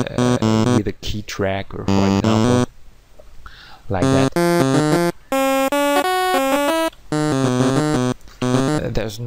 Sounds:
music
speech
musical instrument
inside a small room

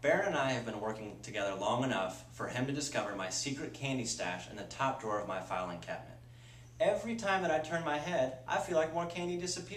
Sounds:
speech

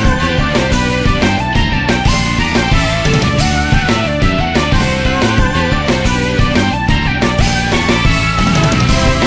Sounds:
music

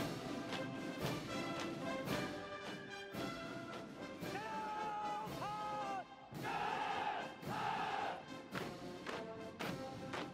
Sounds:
people marching

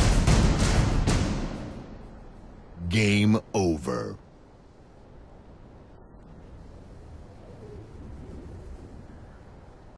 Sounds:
speech

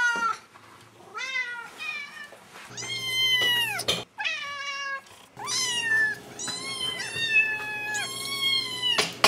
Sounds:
cat caterwauling

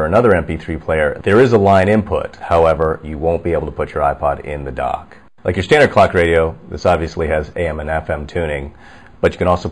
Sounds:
speech

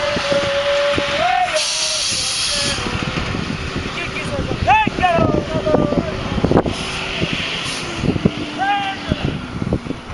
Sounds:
outside, rural or natural
vehicle
speech

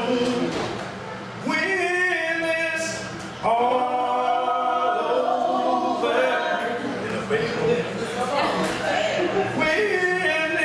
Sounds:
choir
singing

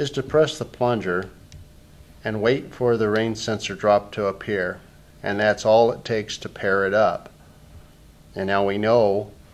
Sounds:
speech

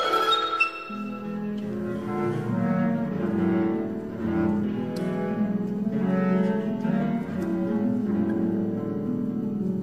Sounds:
music
bowed string instrument

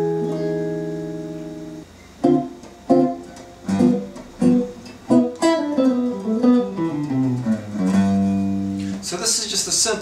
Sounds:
musical instrument
guitar
electric guitar
strum
music
plucked string instrument
speech

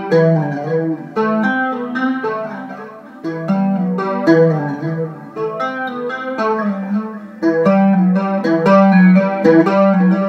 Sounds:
guitar
plucked string instrument
musical instrument
music
strum

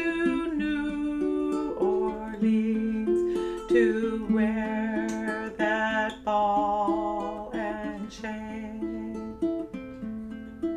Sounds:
ukulele
music
plucked string instrument
singing
musical instrument

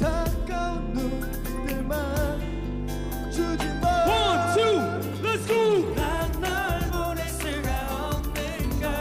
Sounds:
music

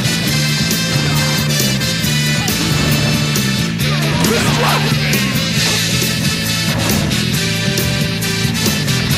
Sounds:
music

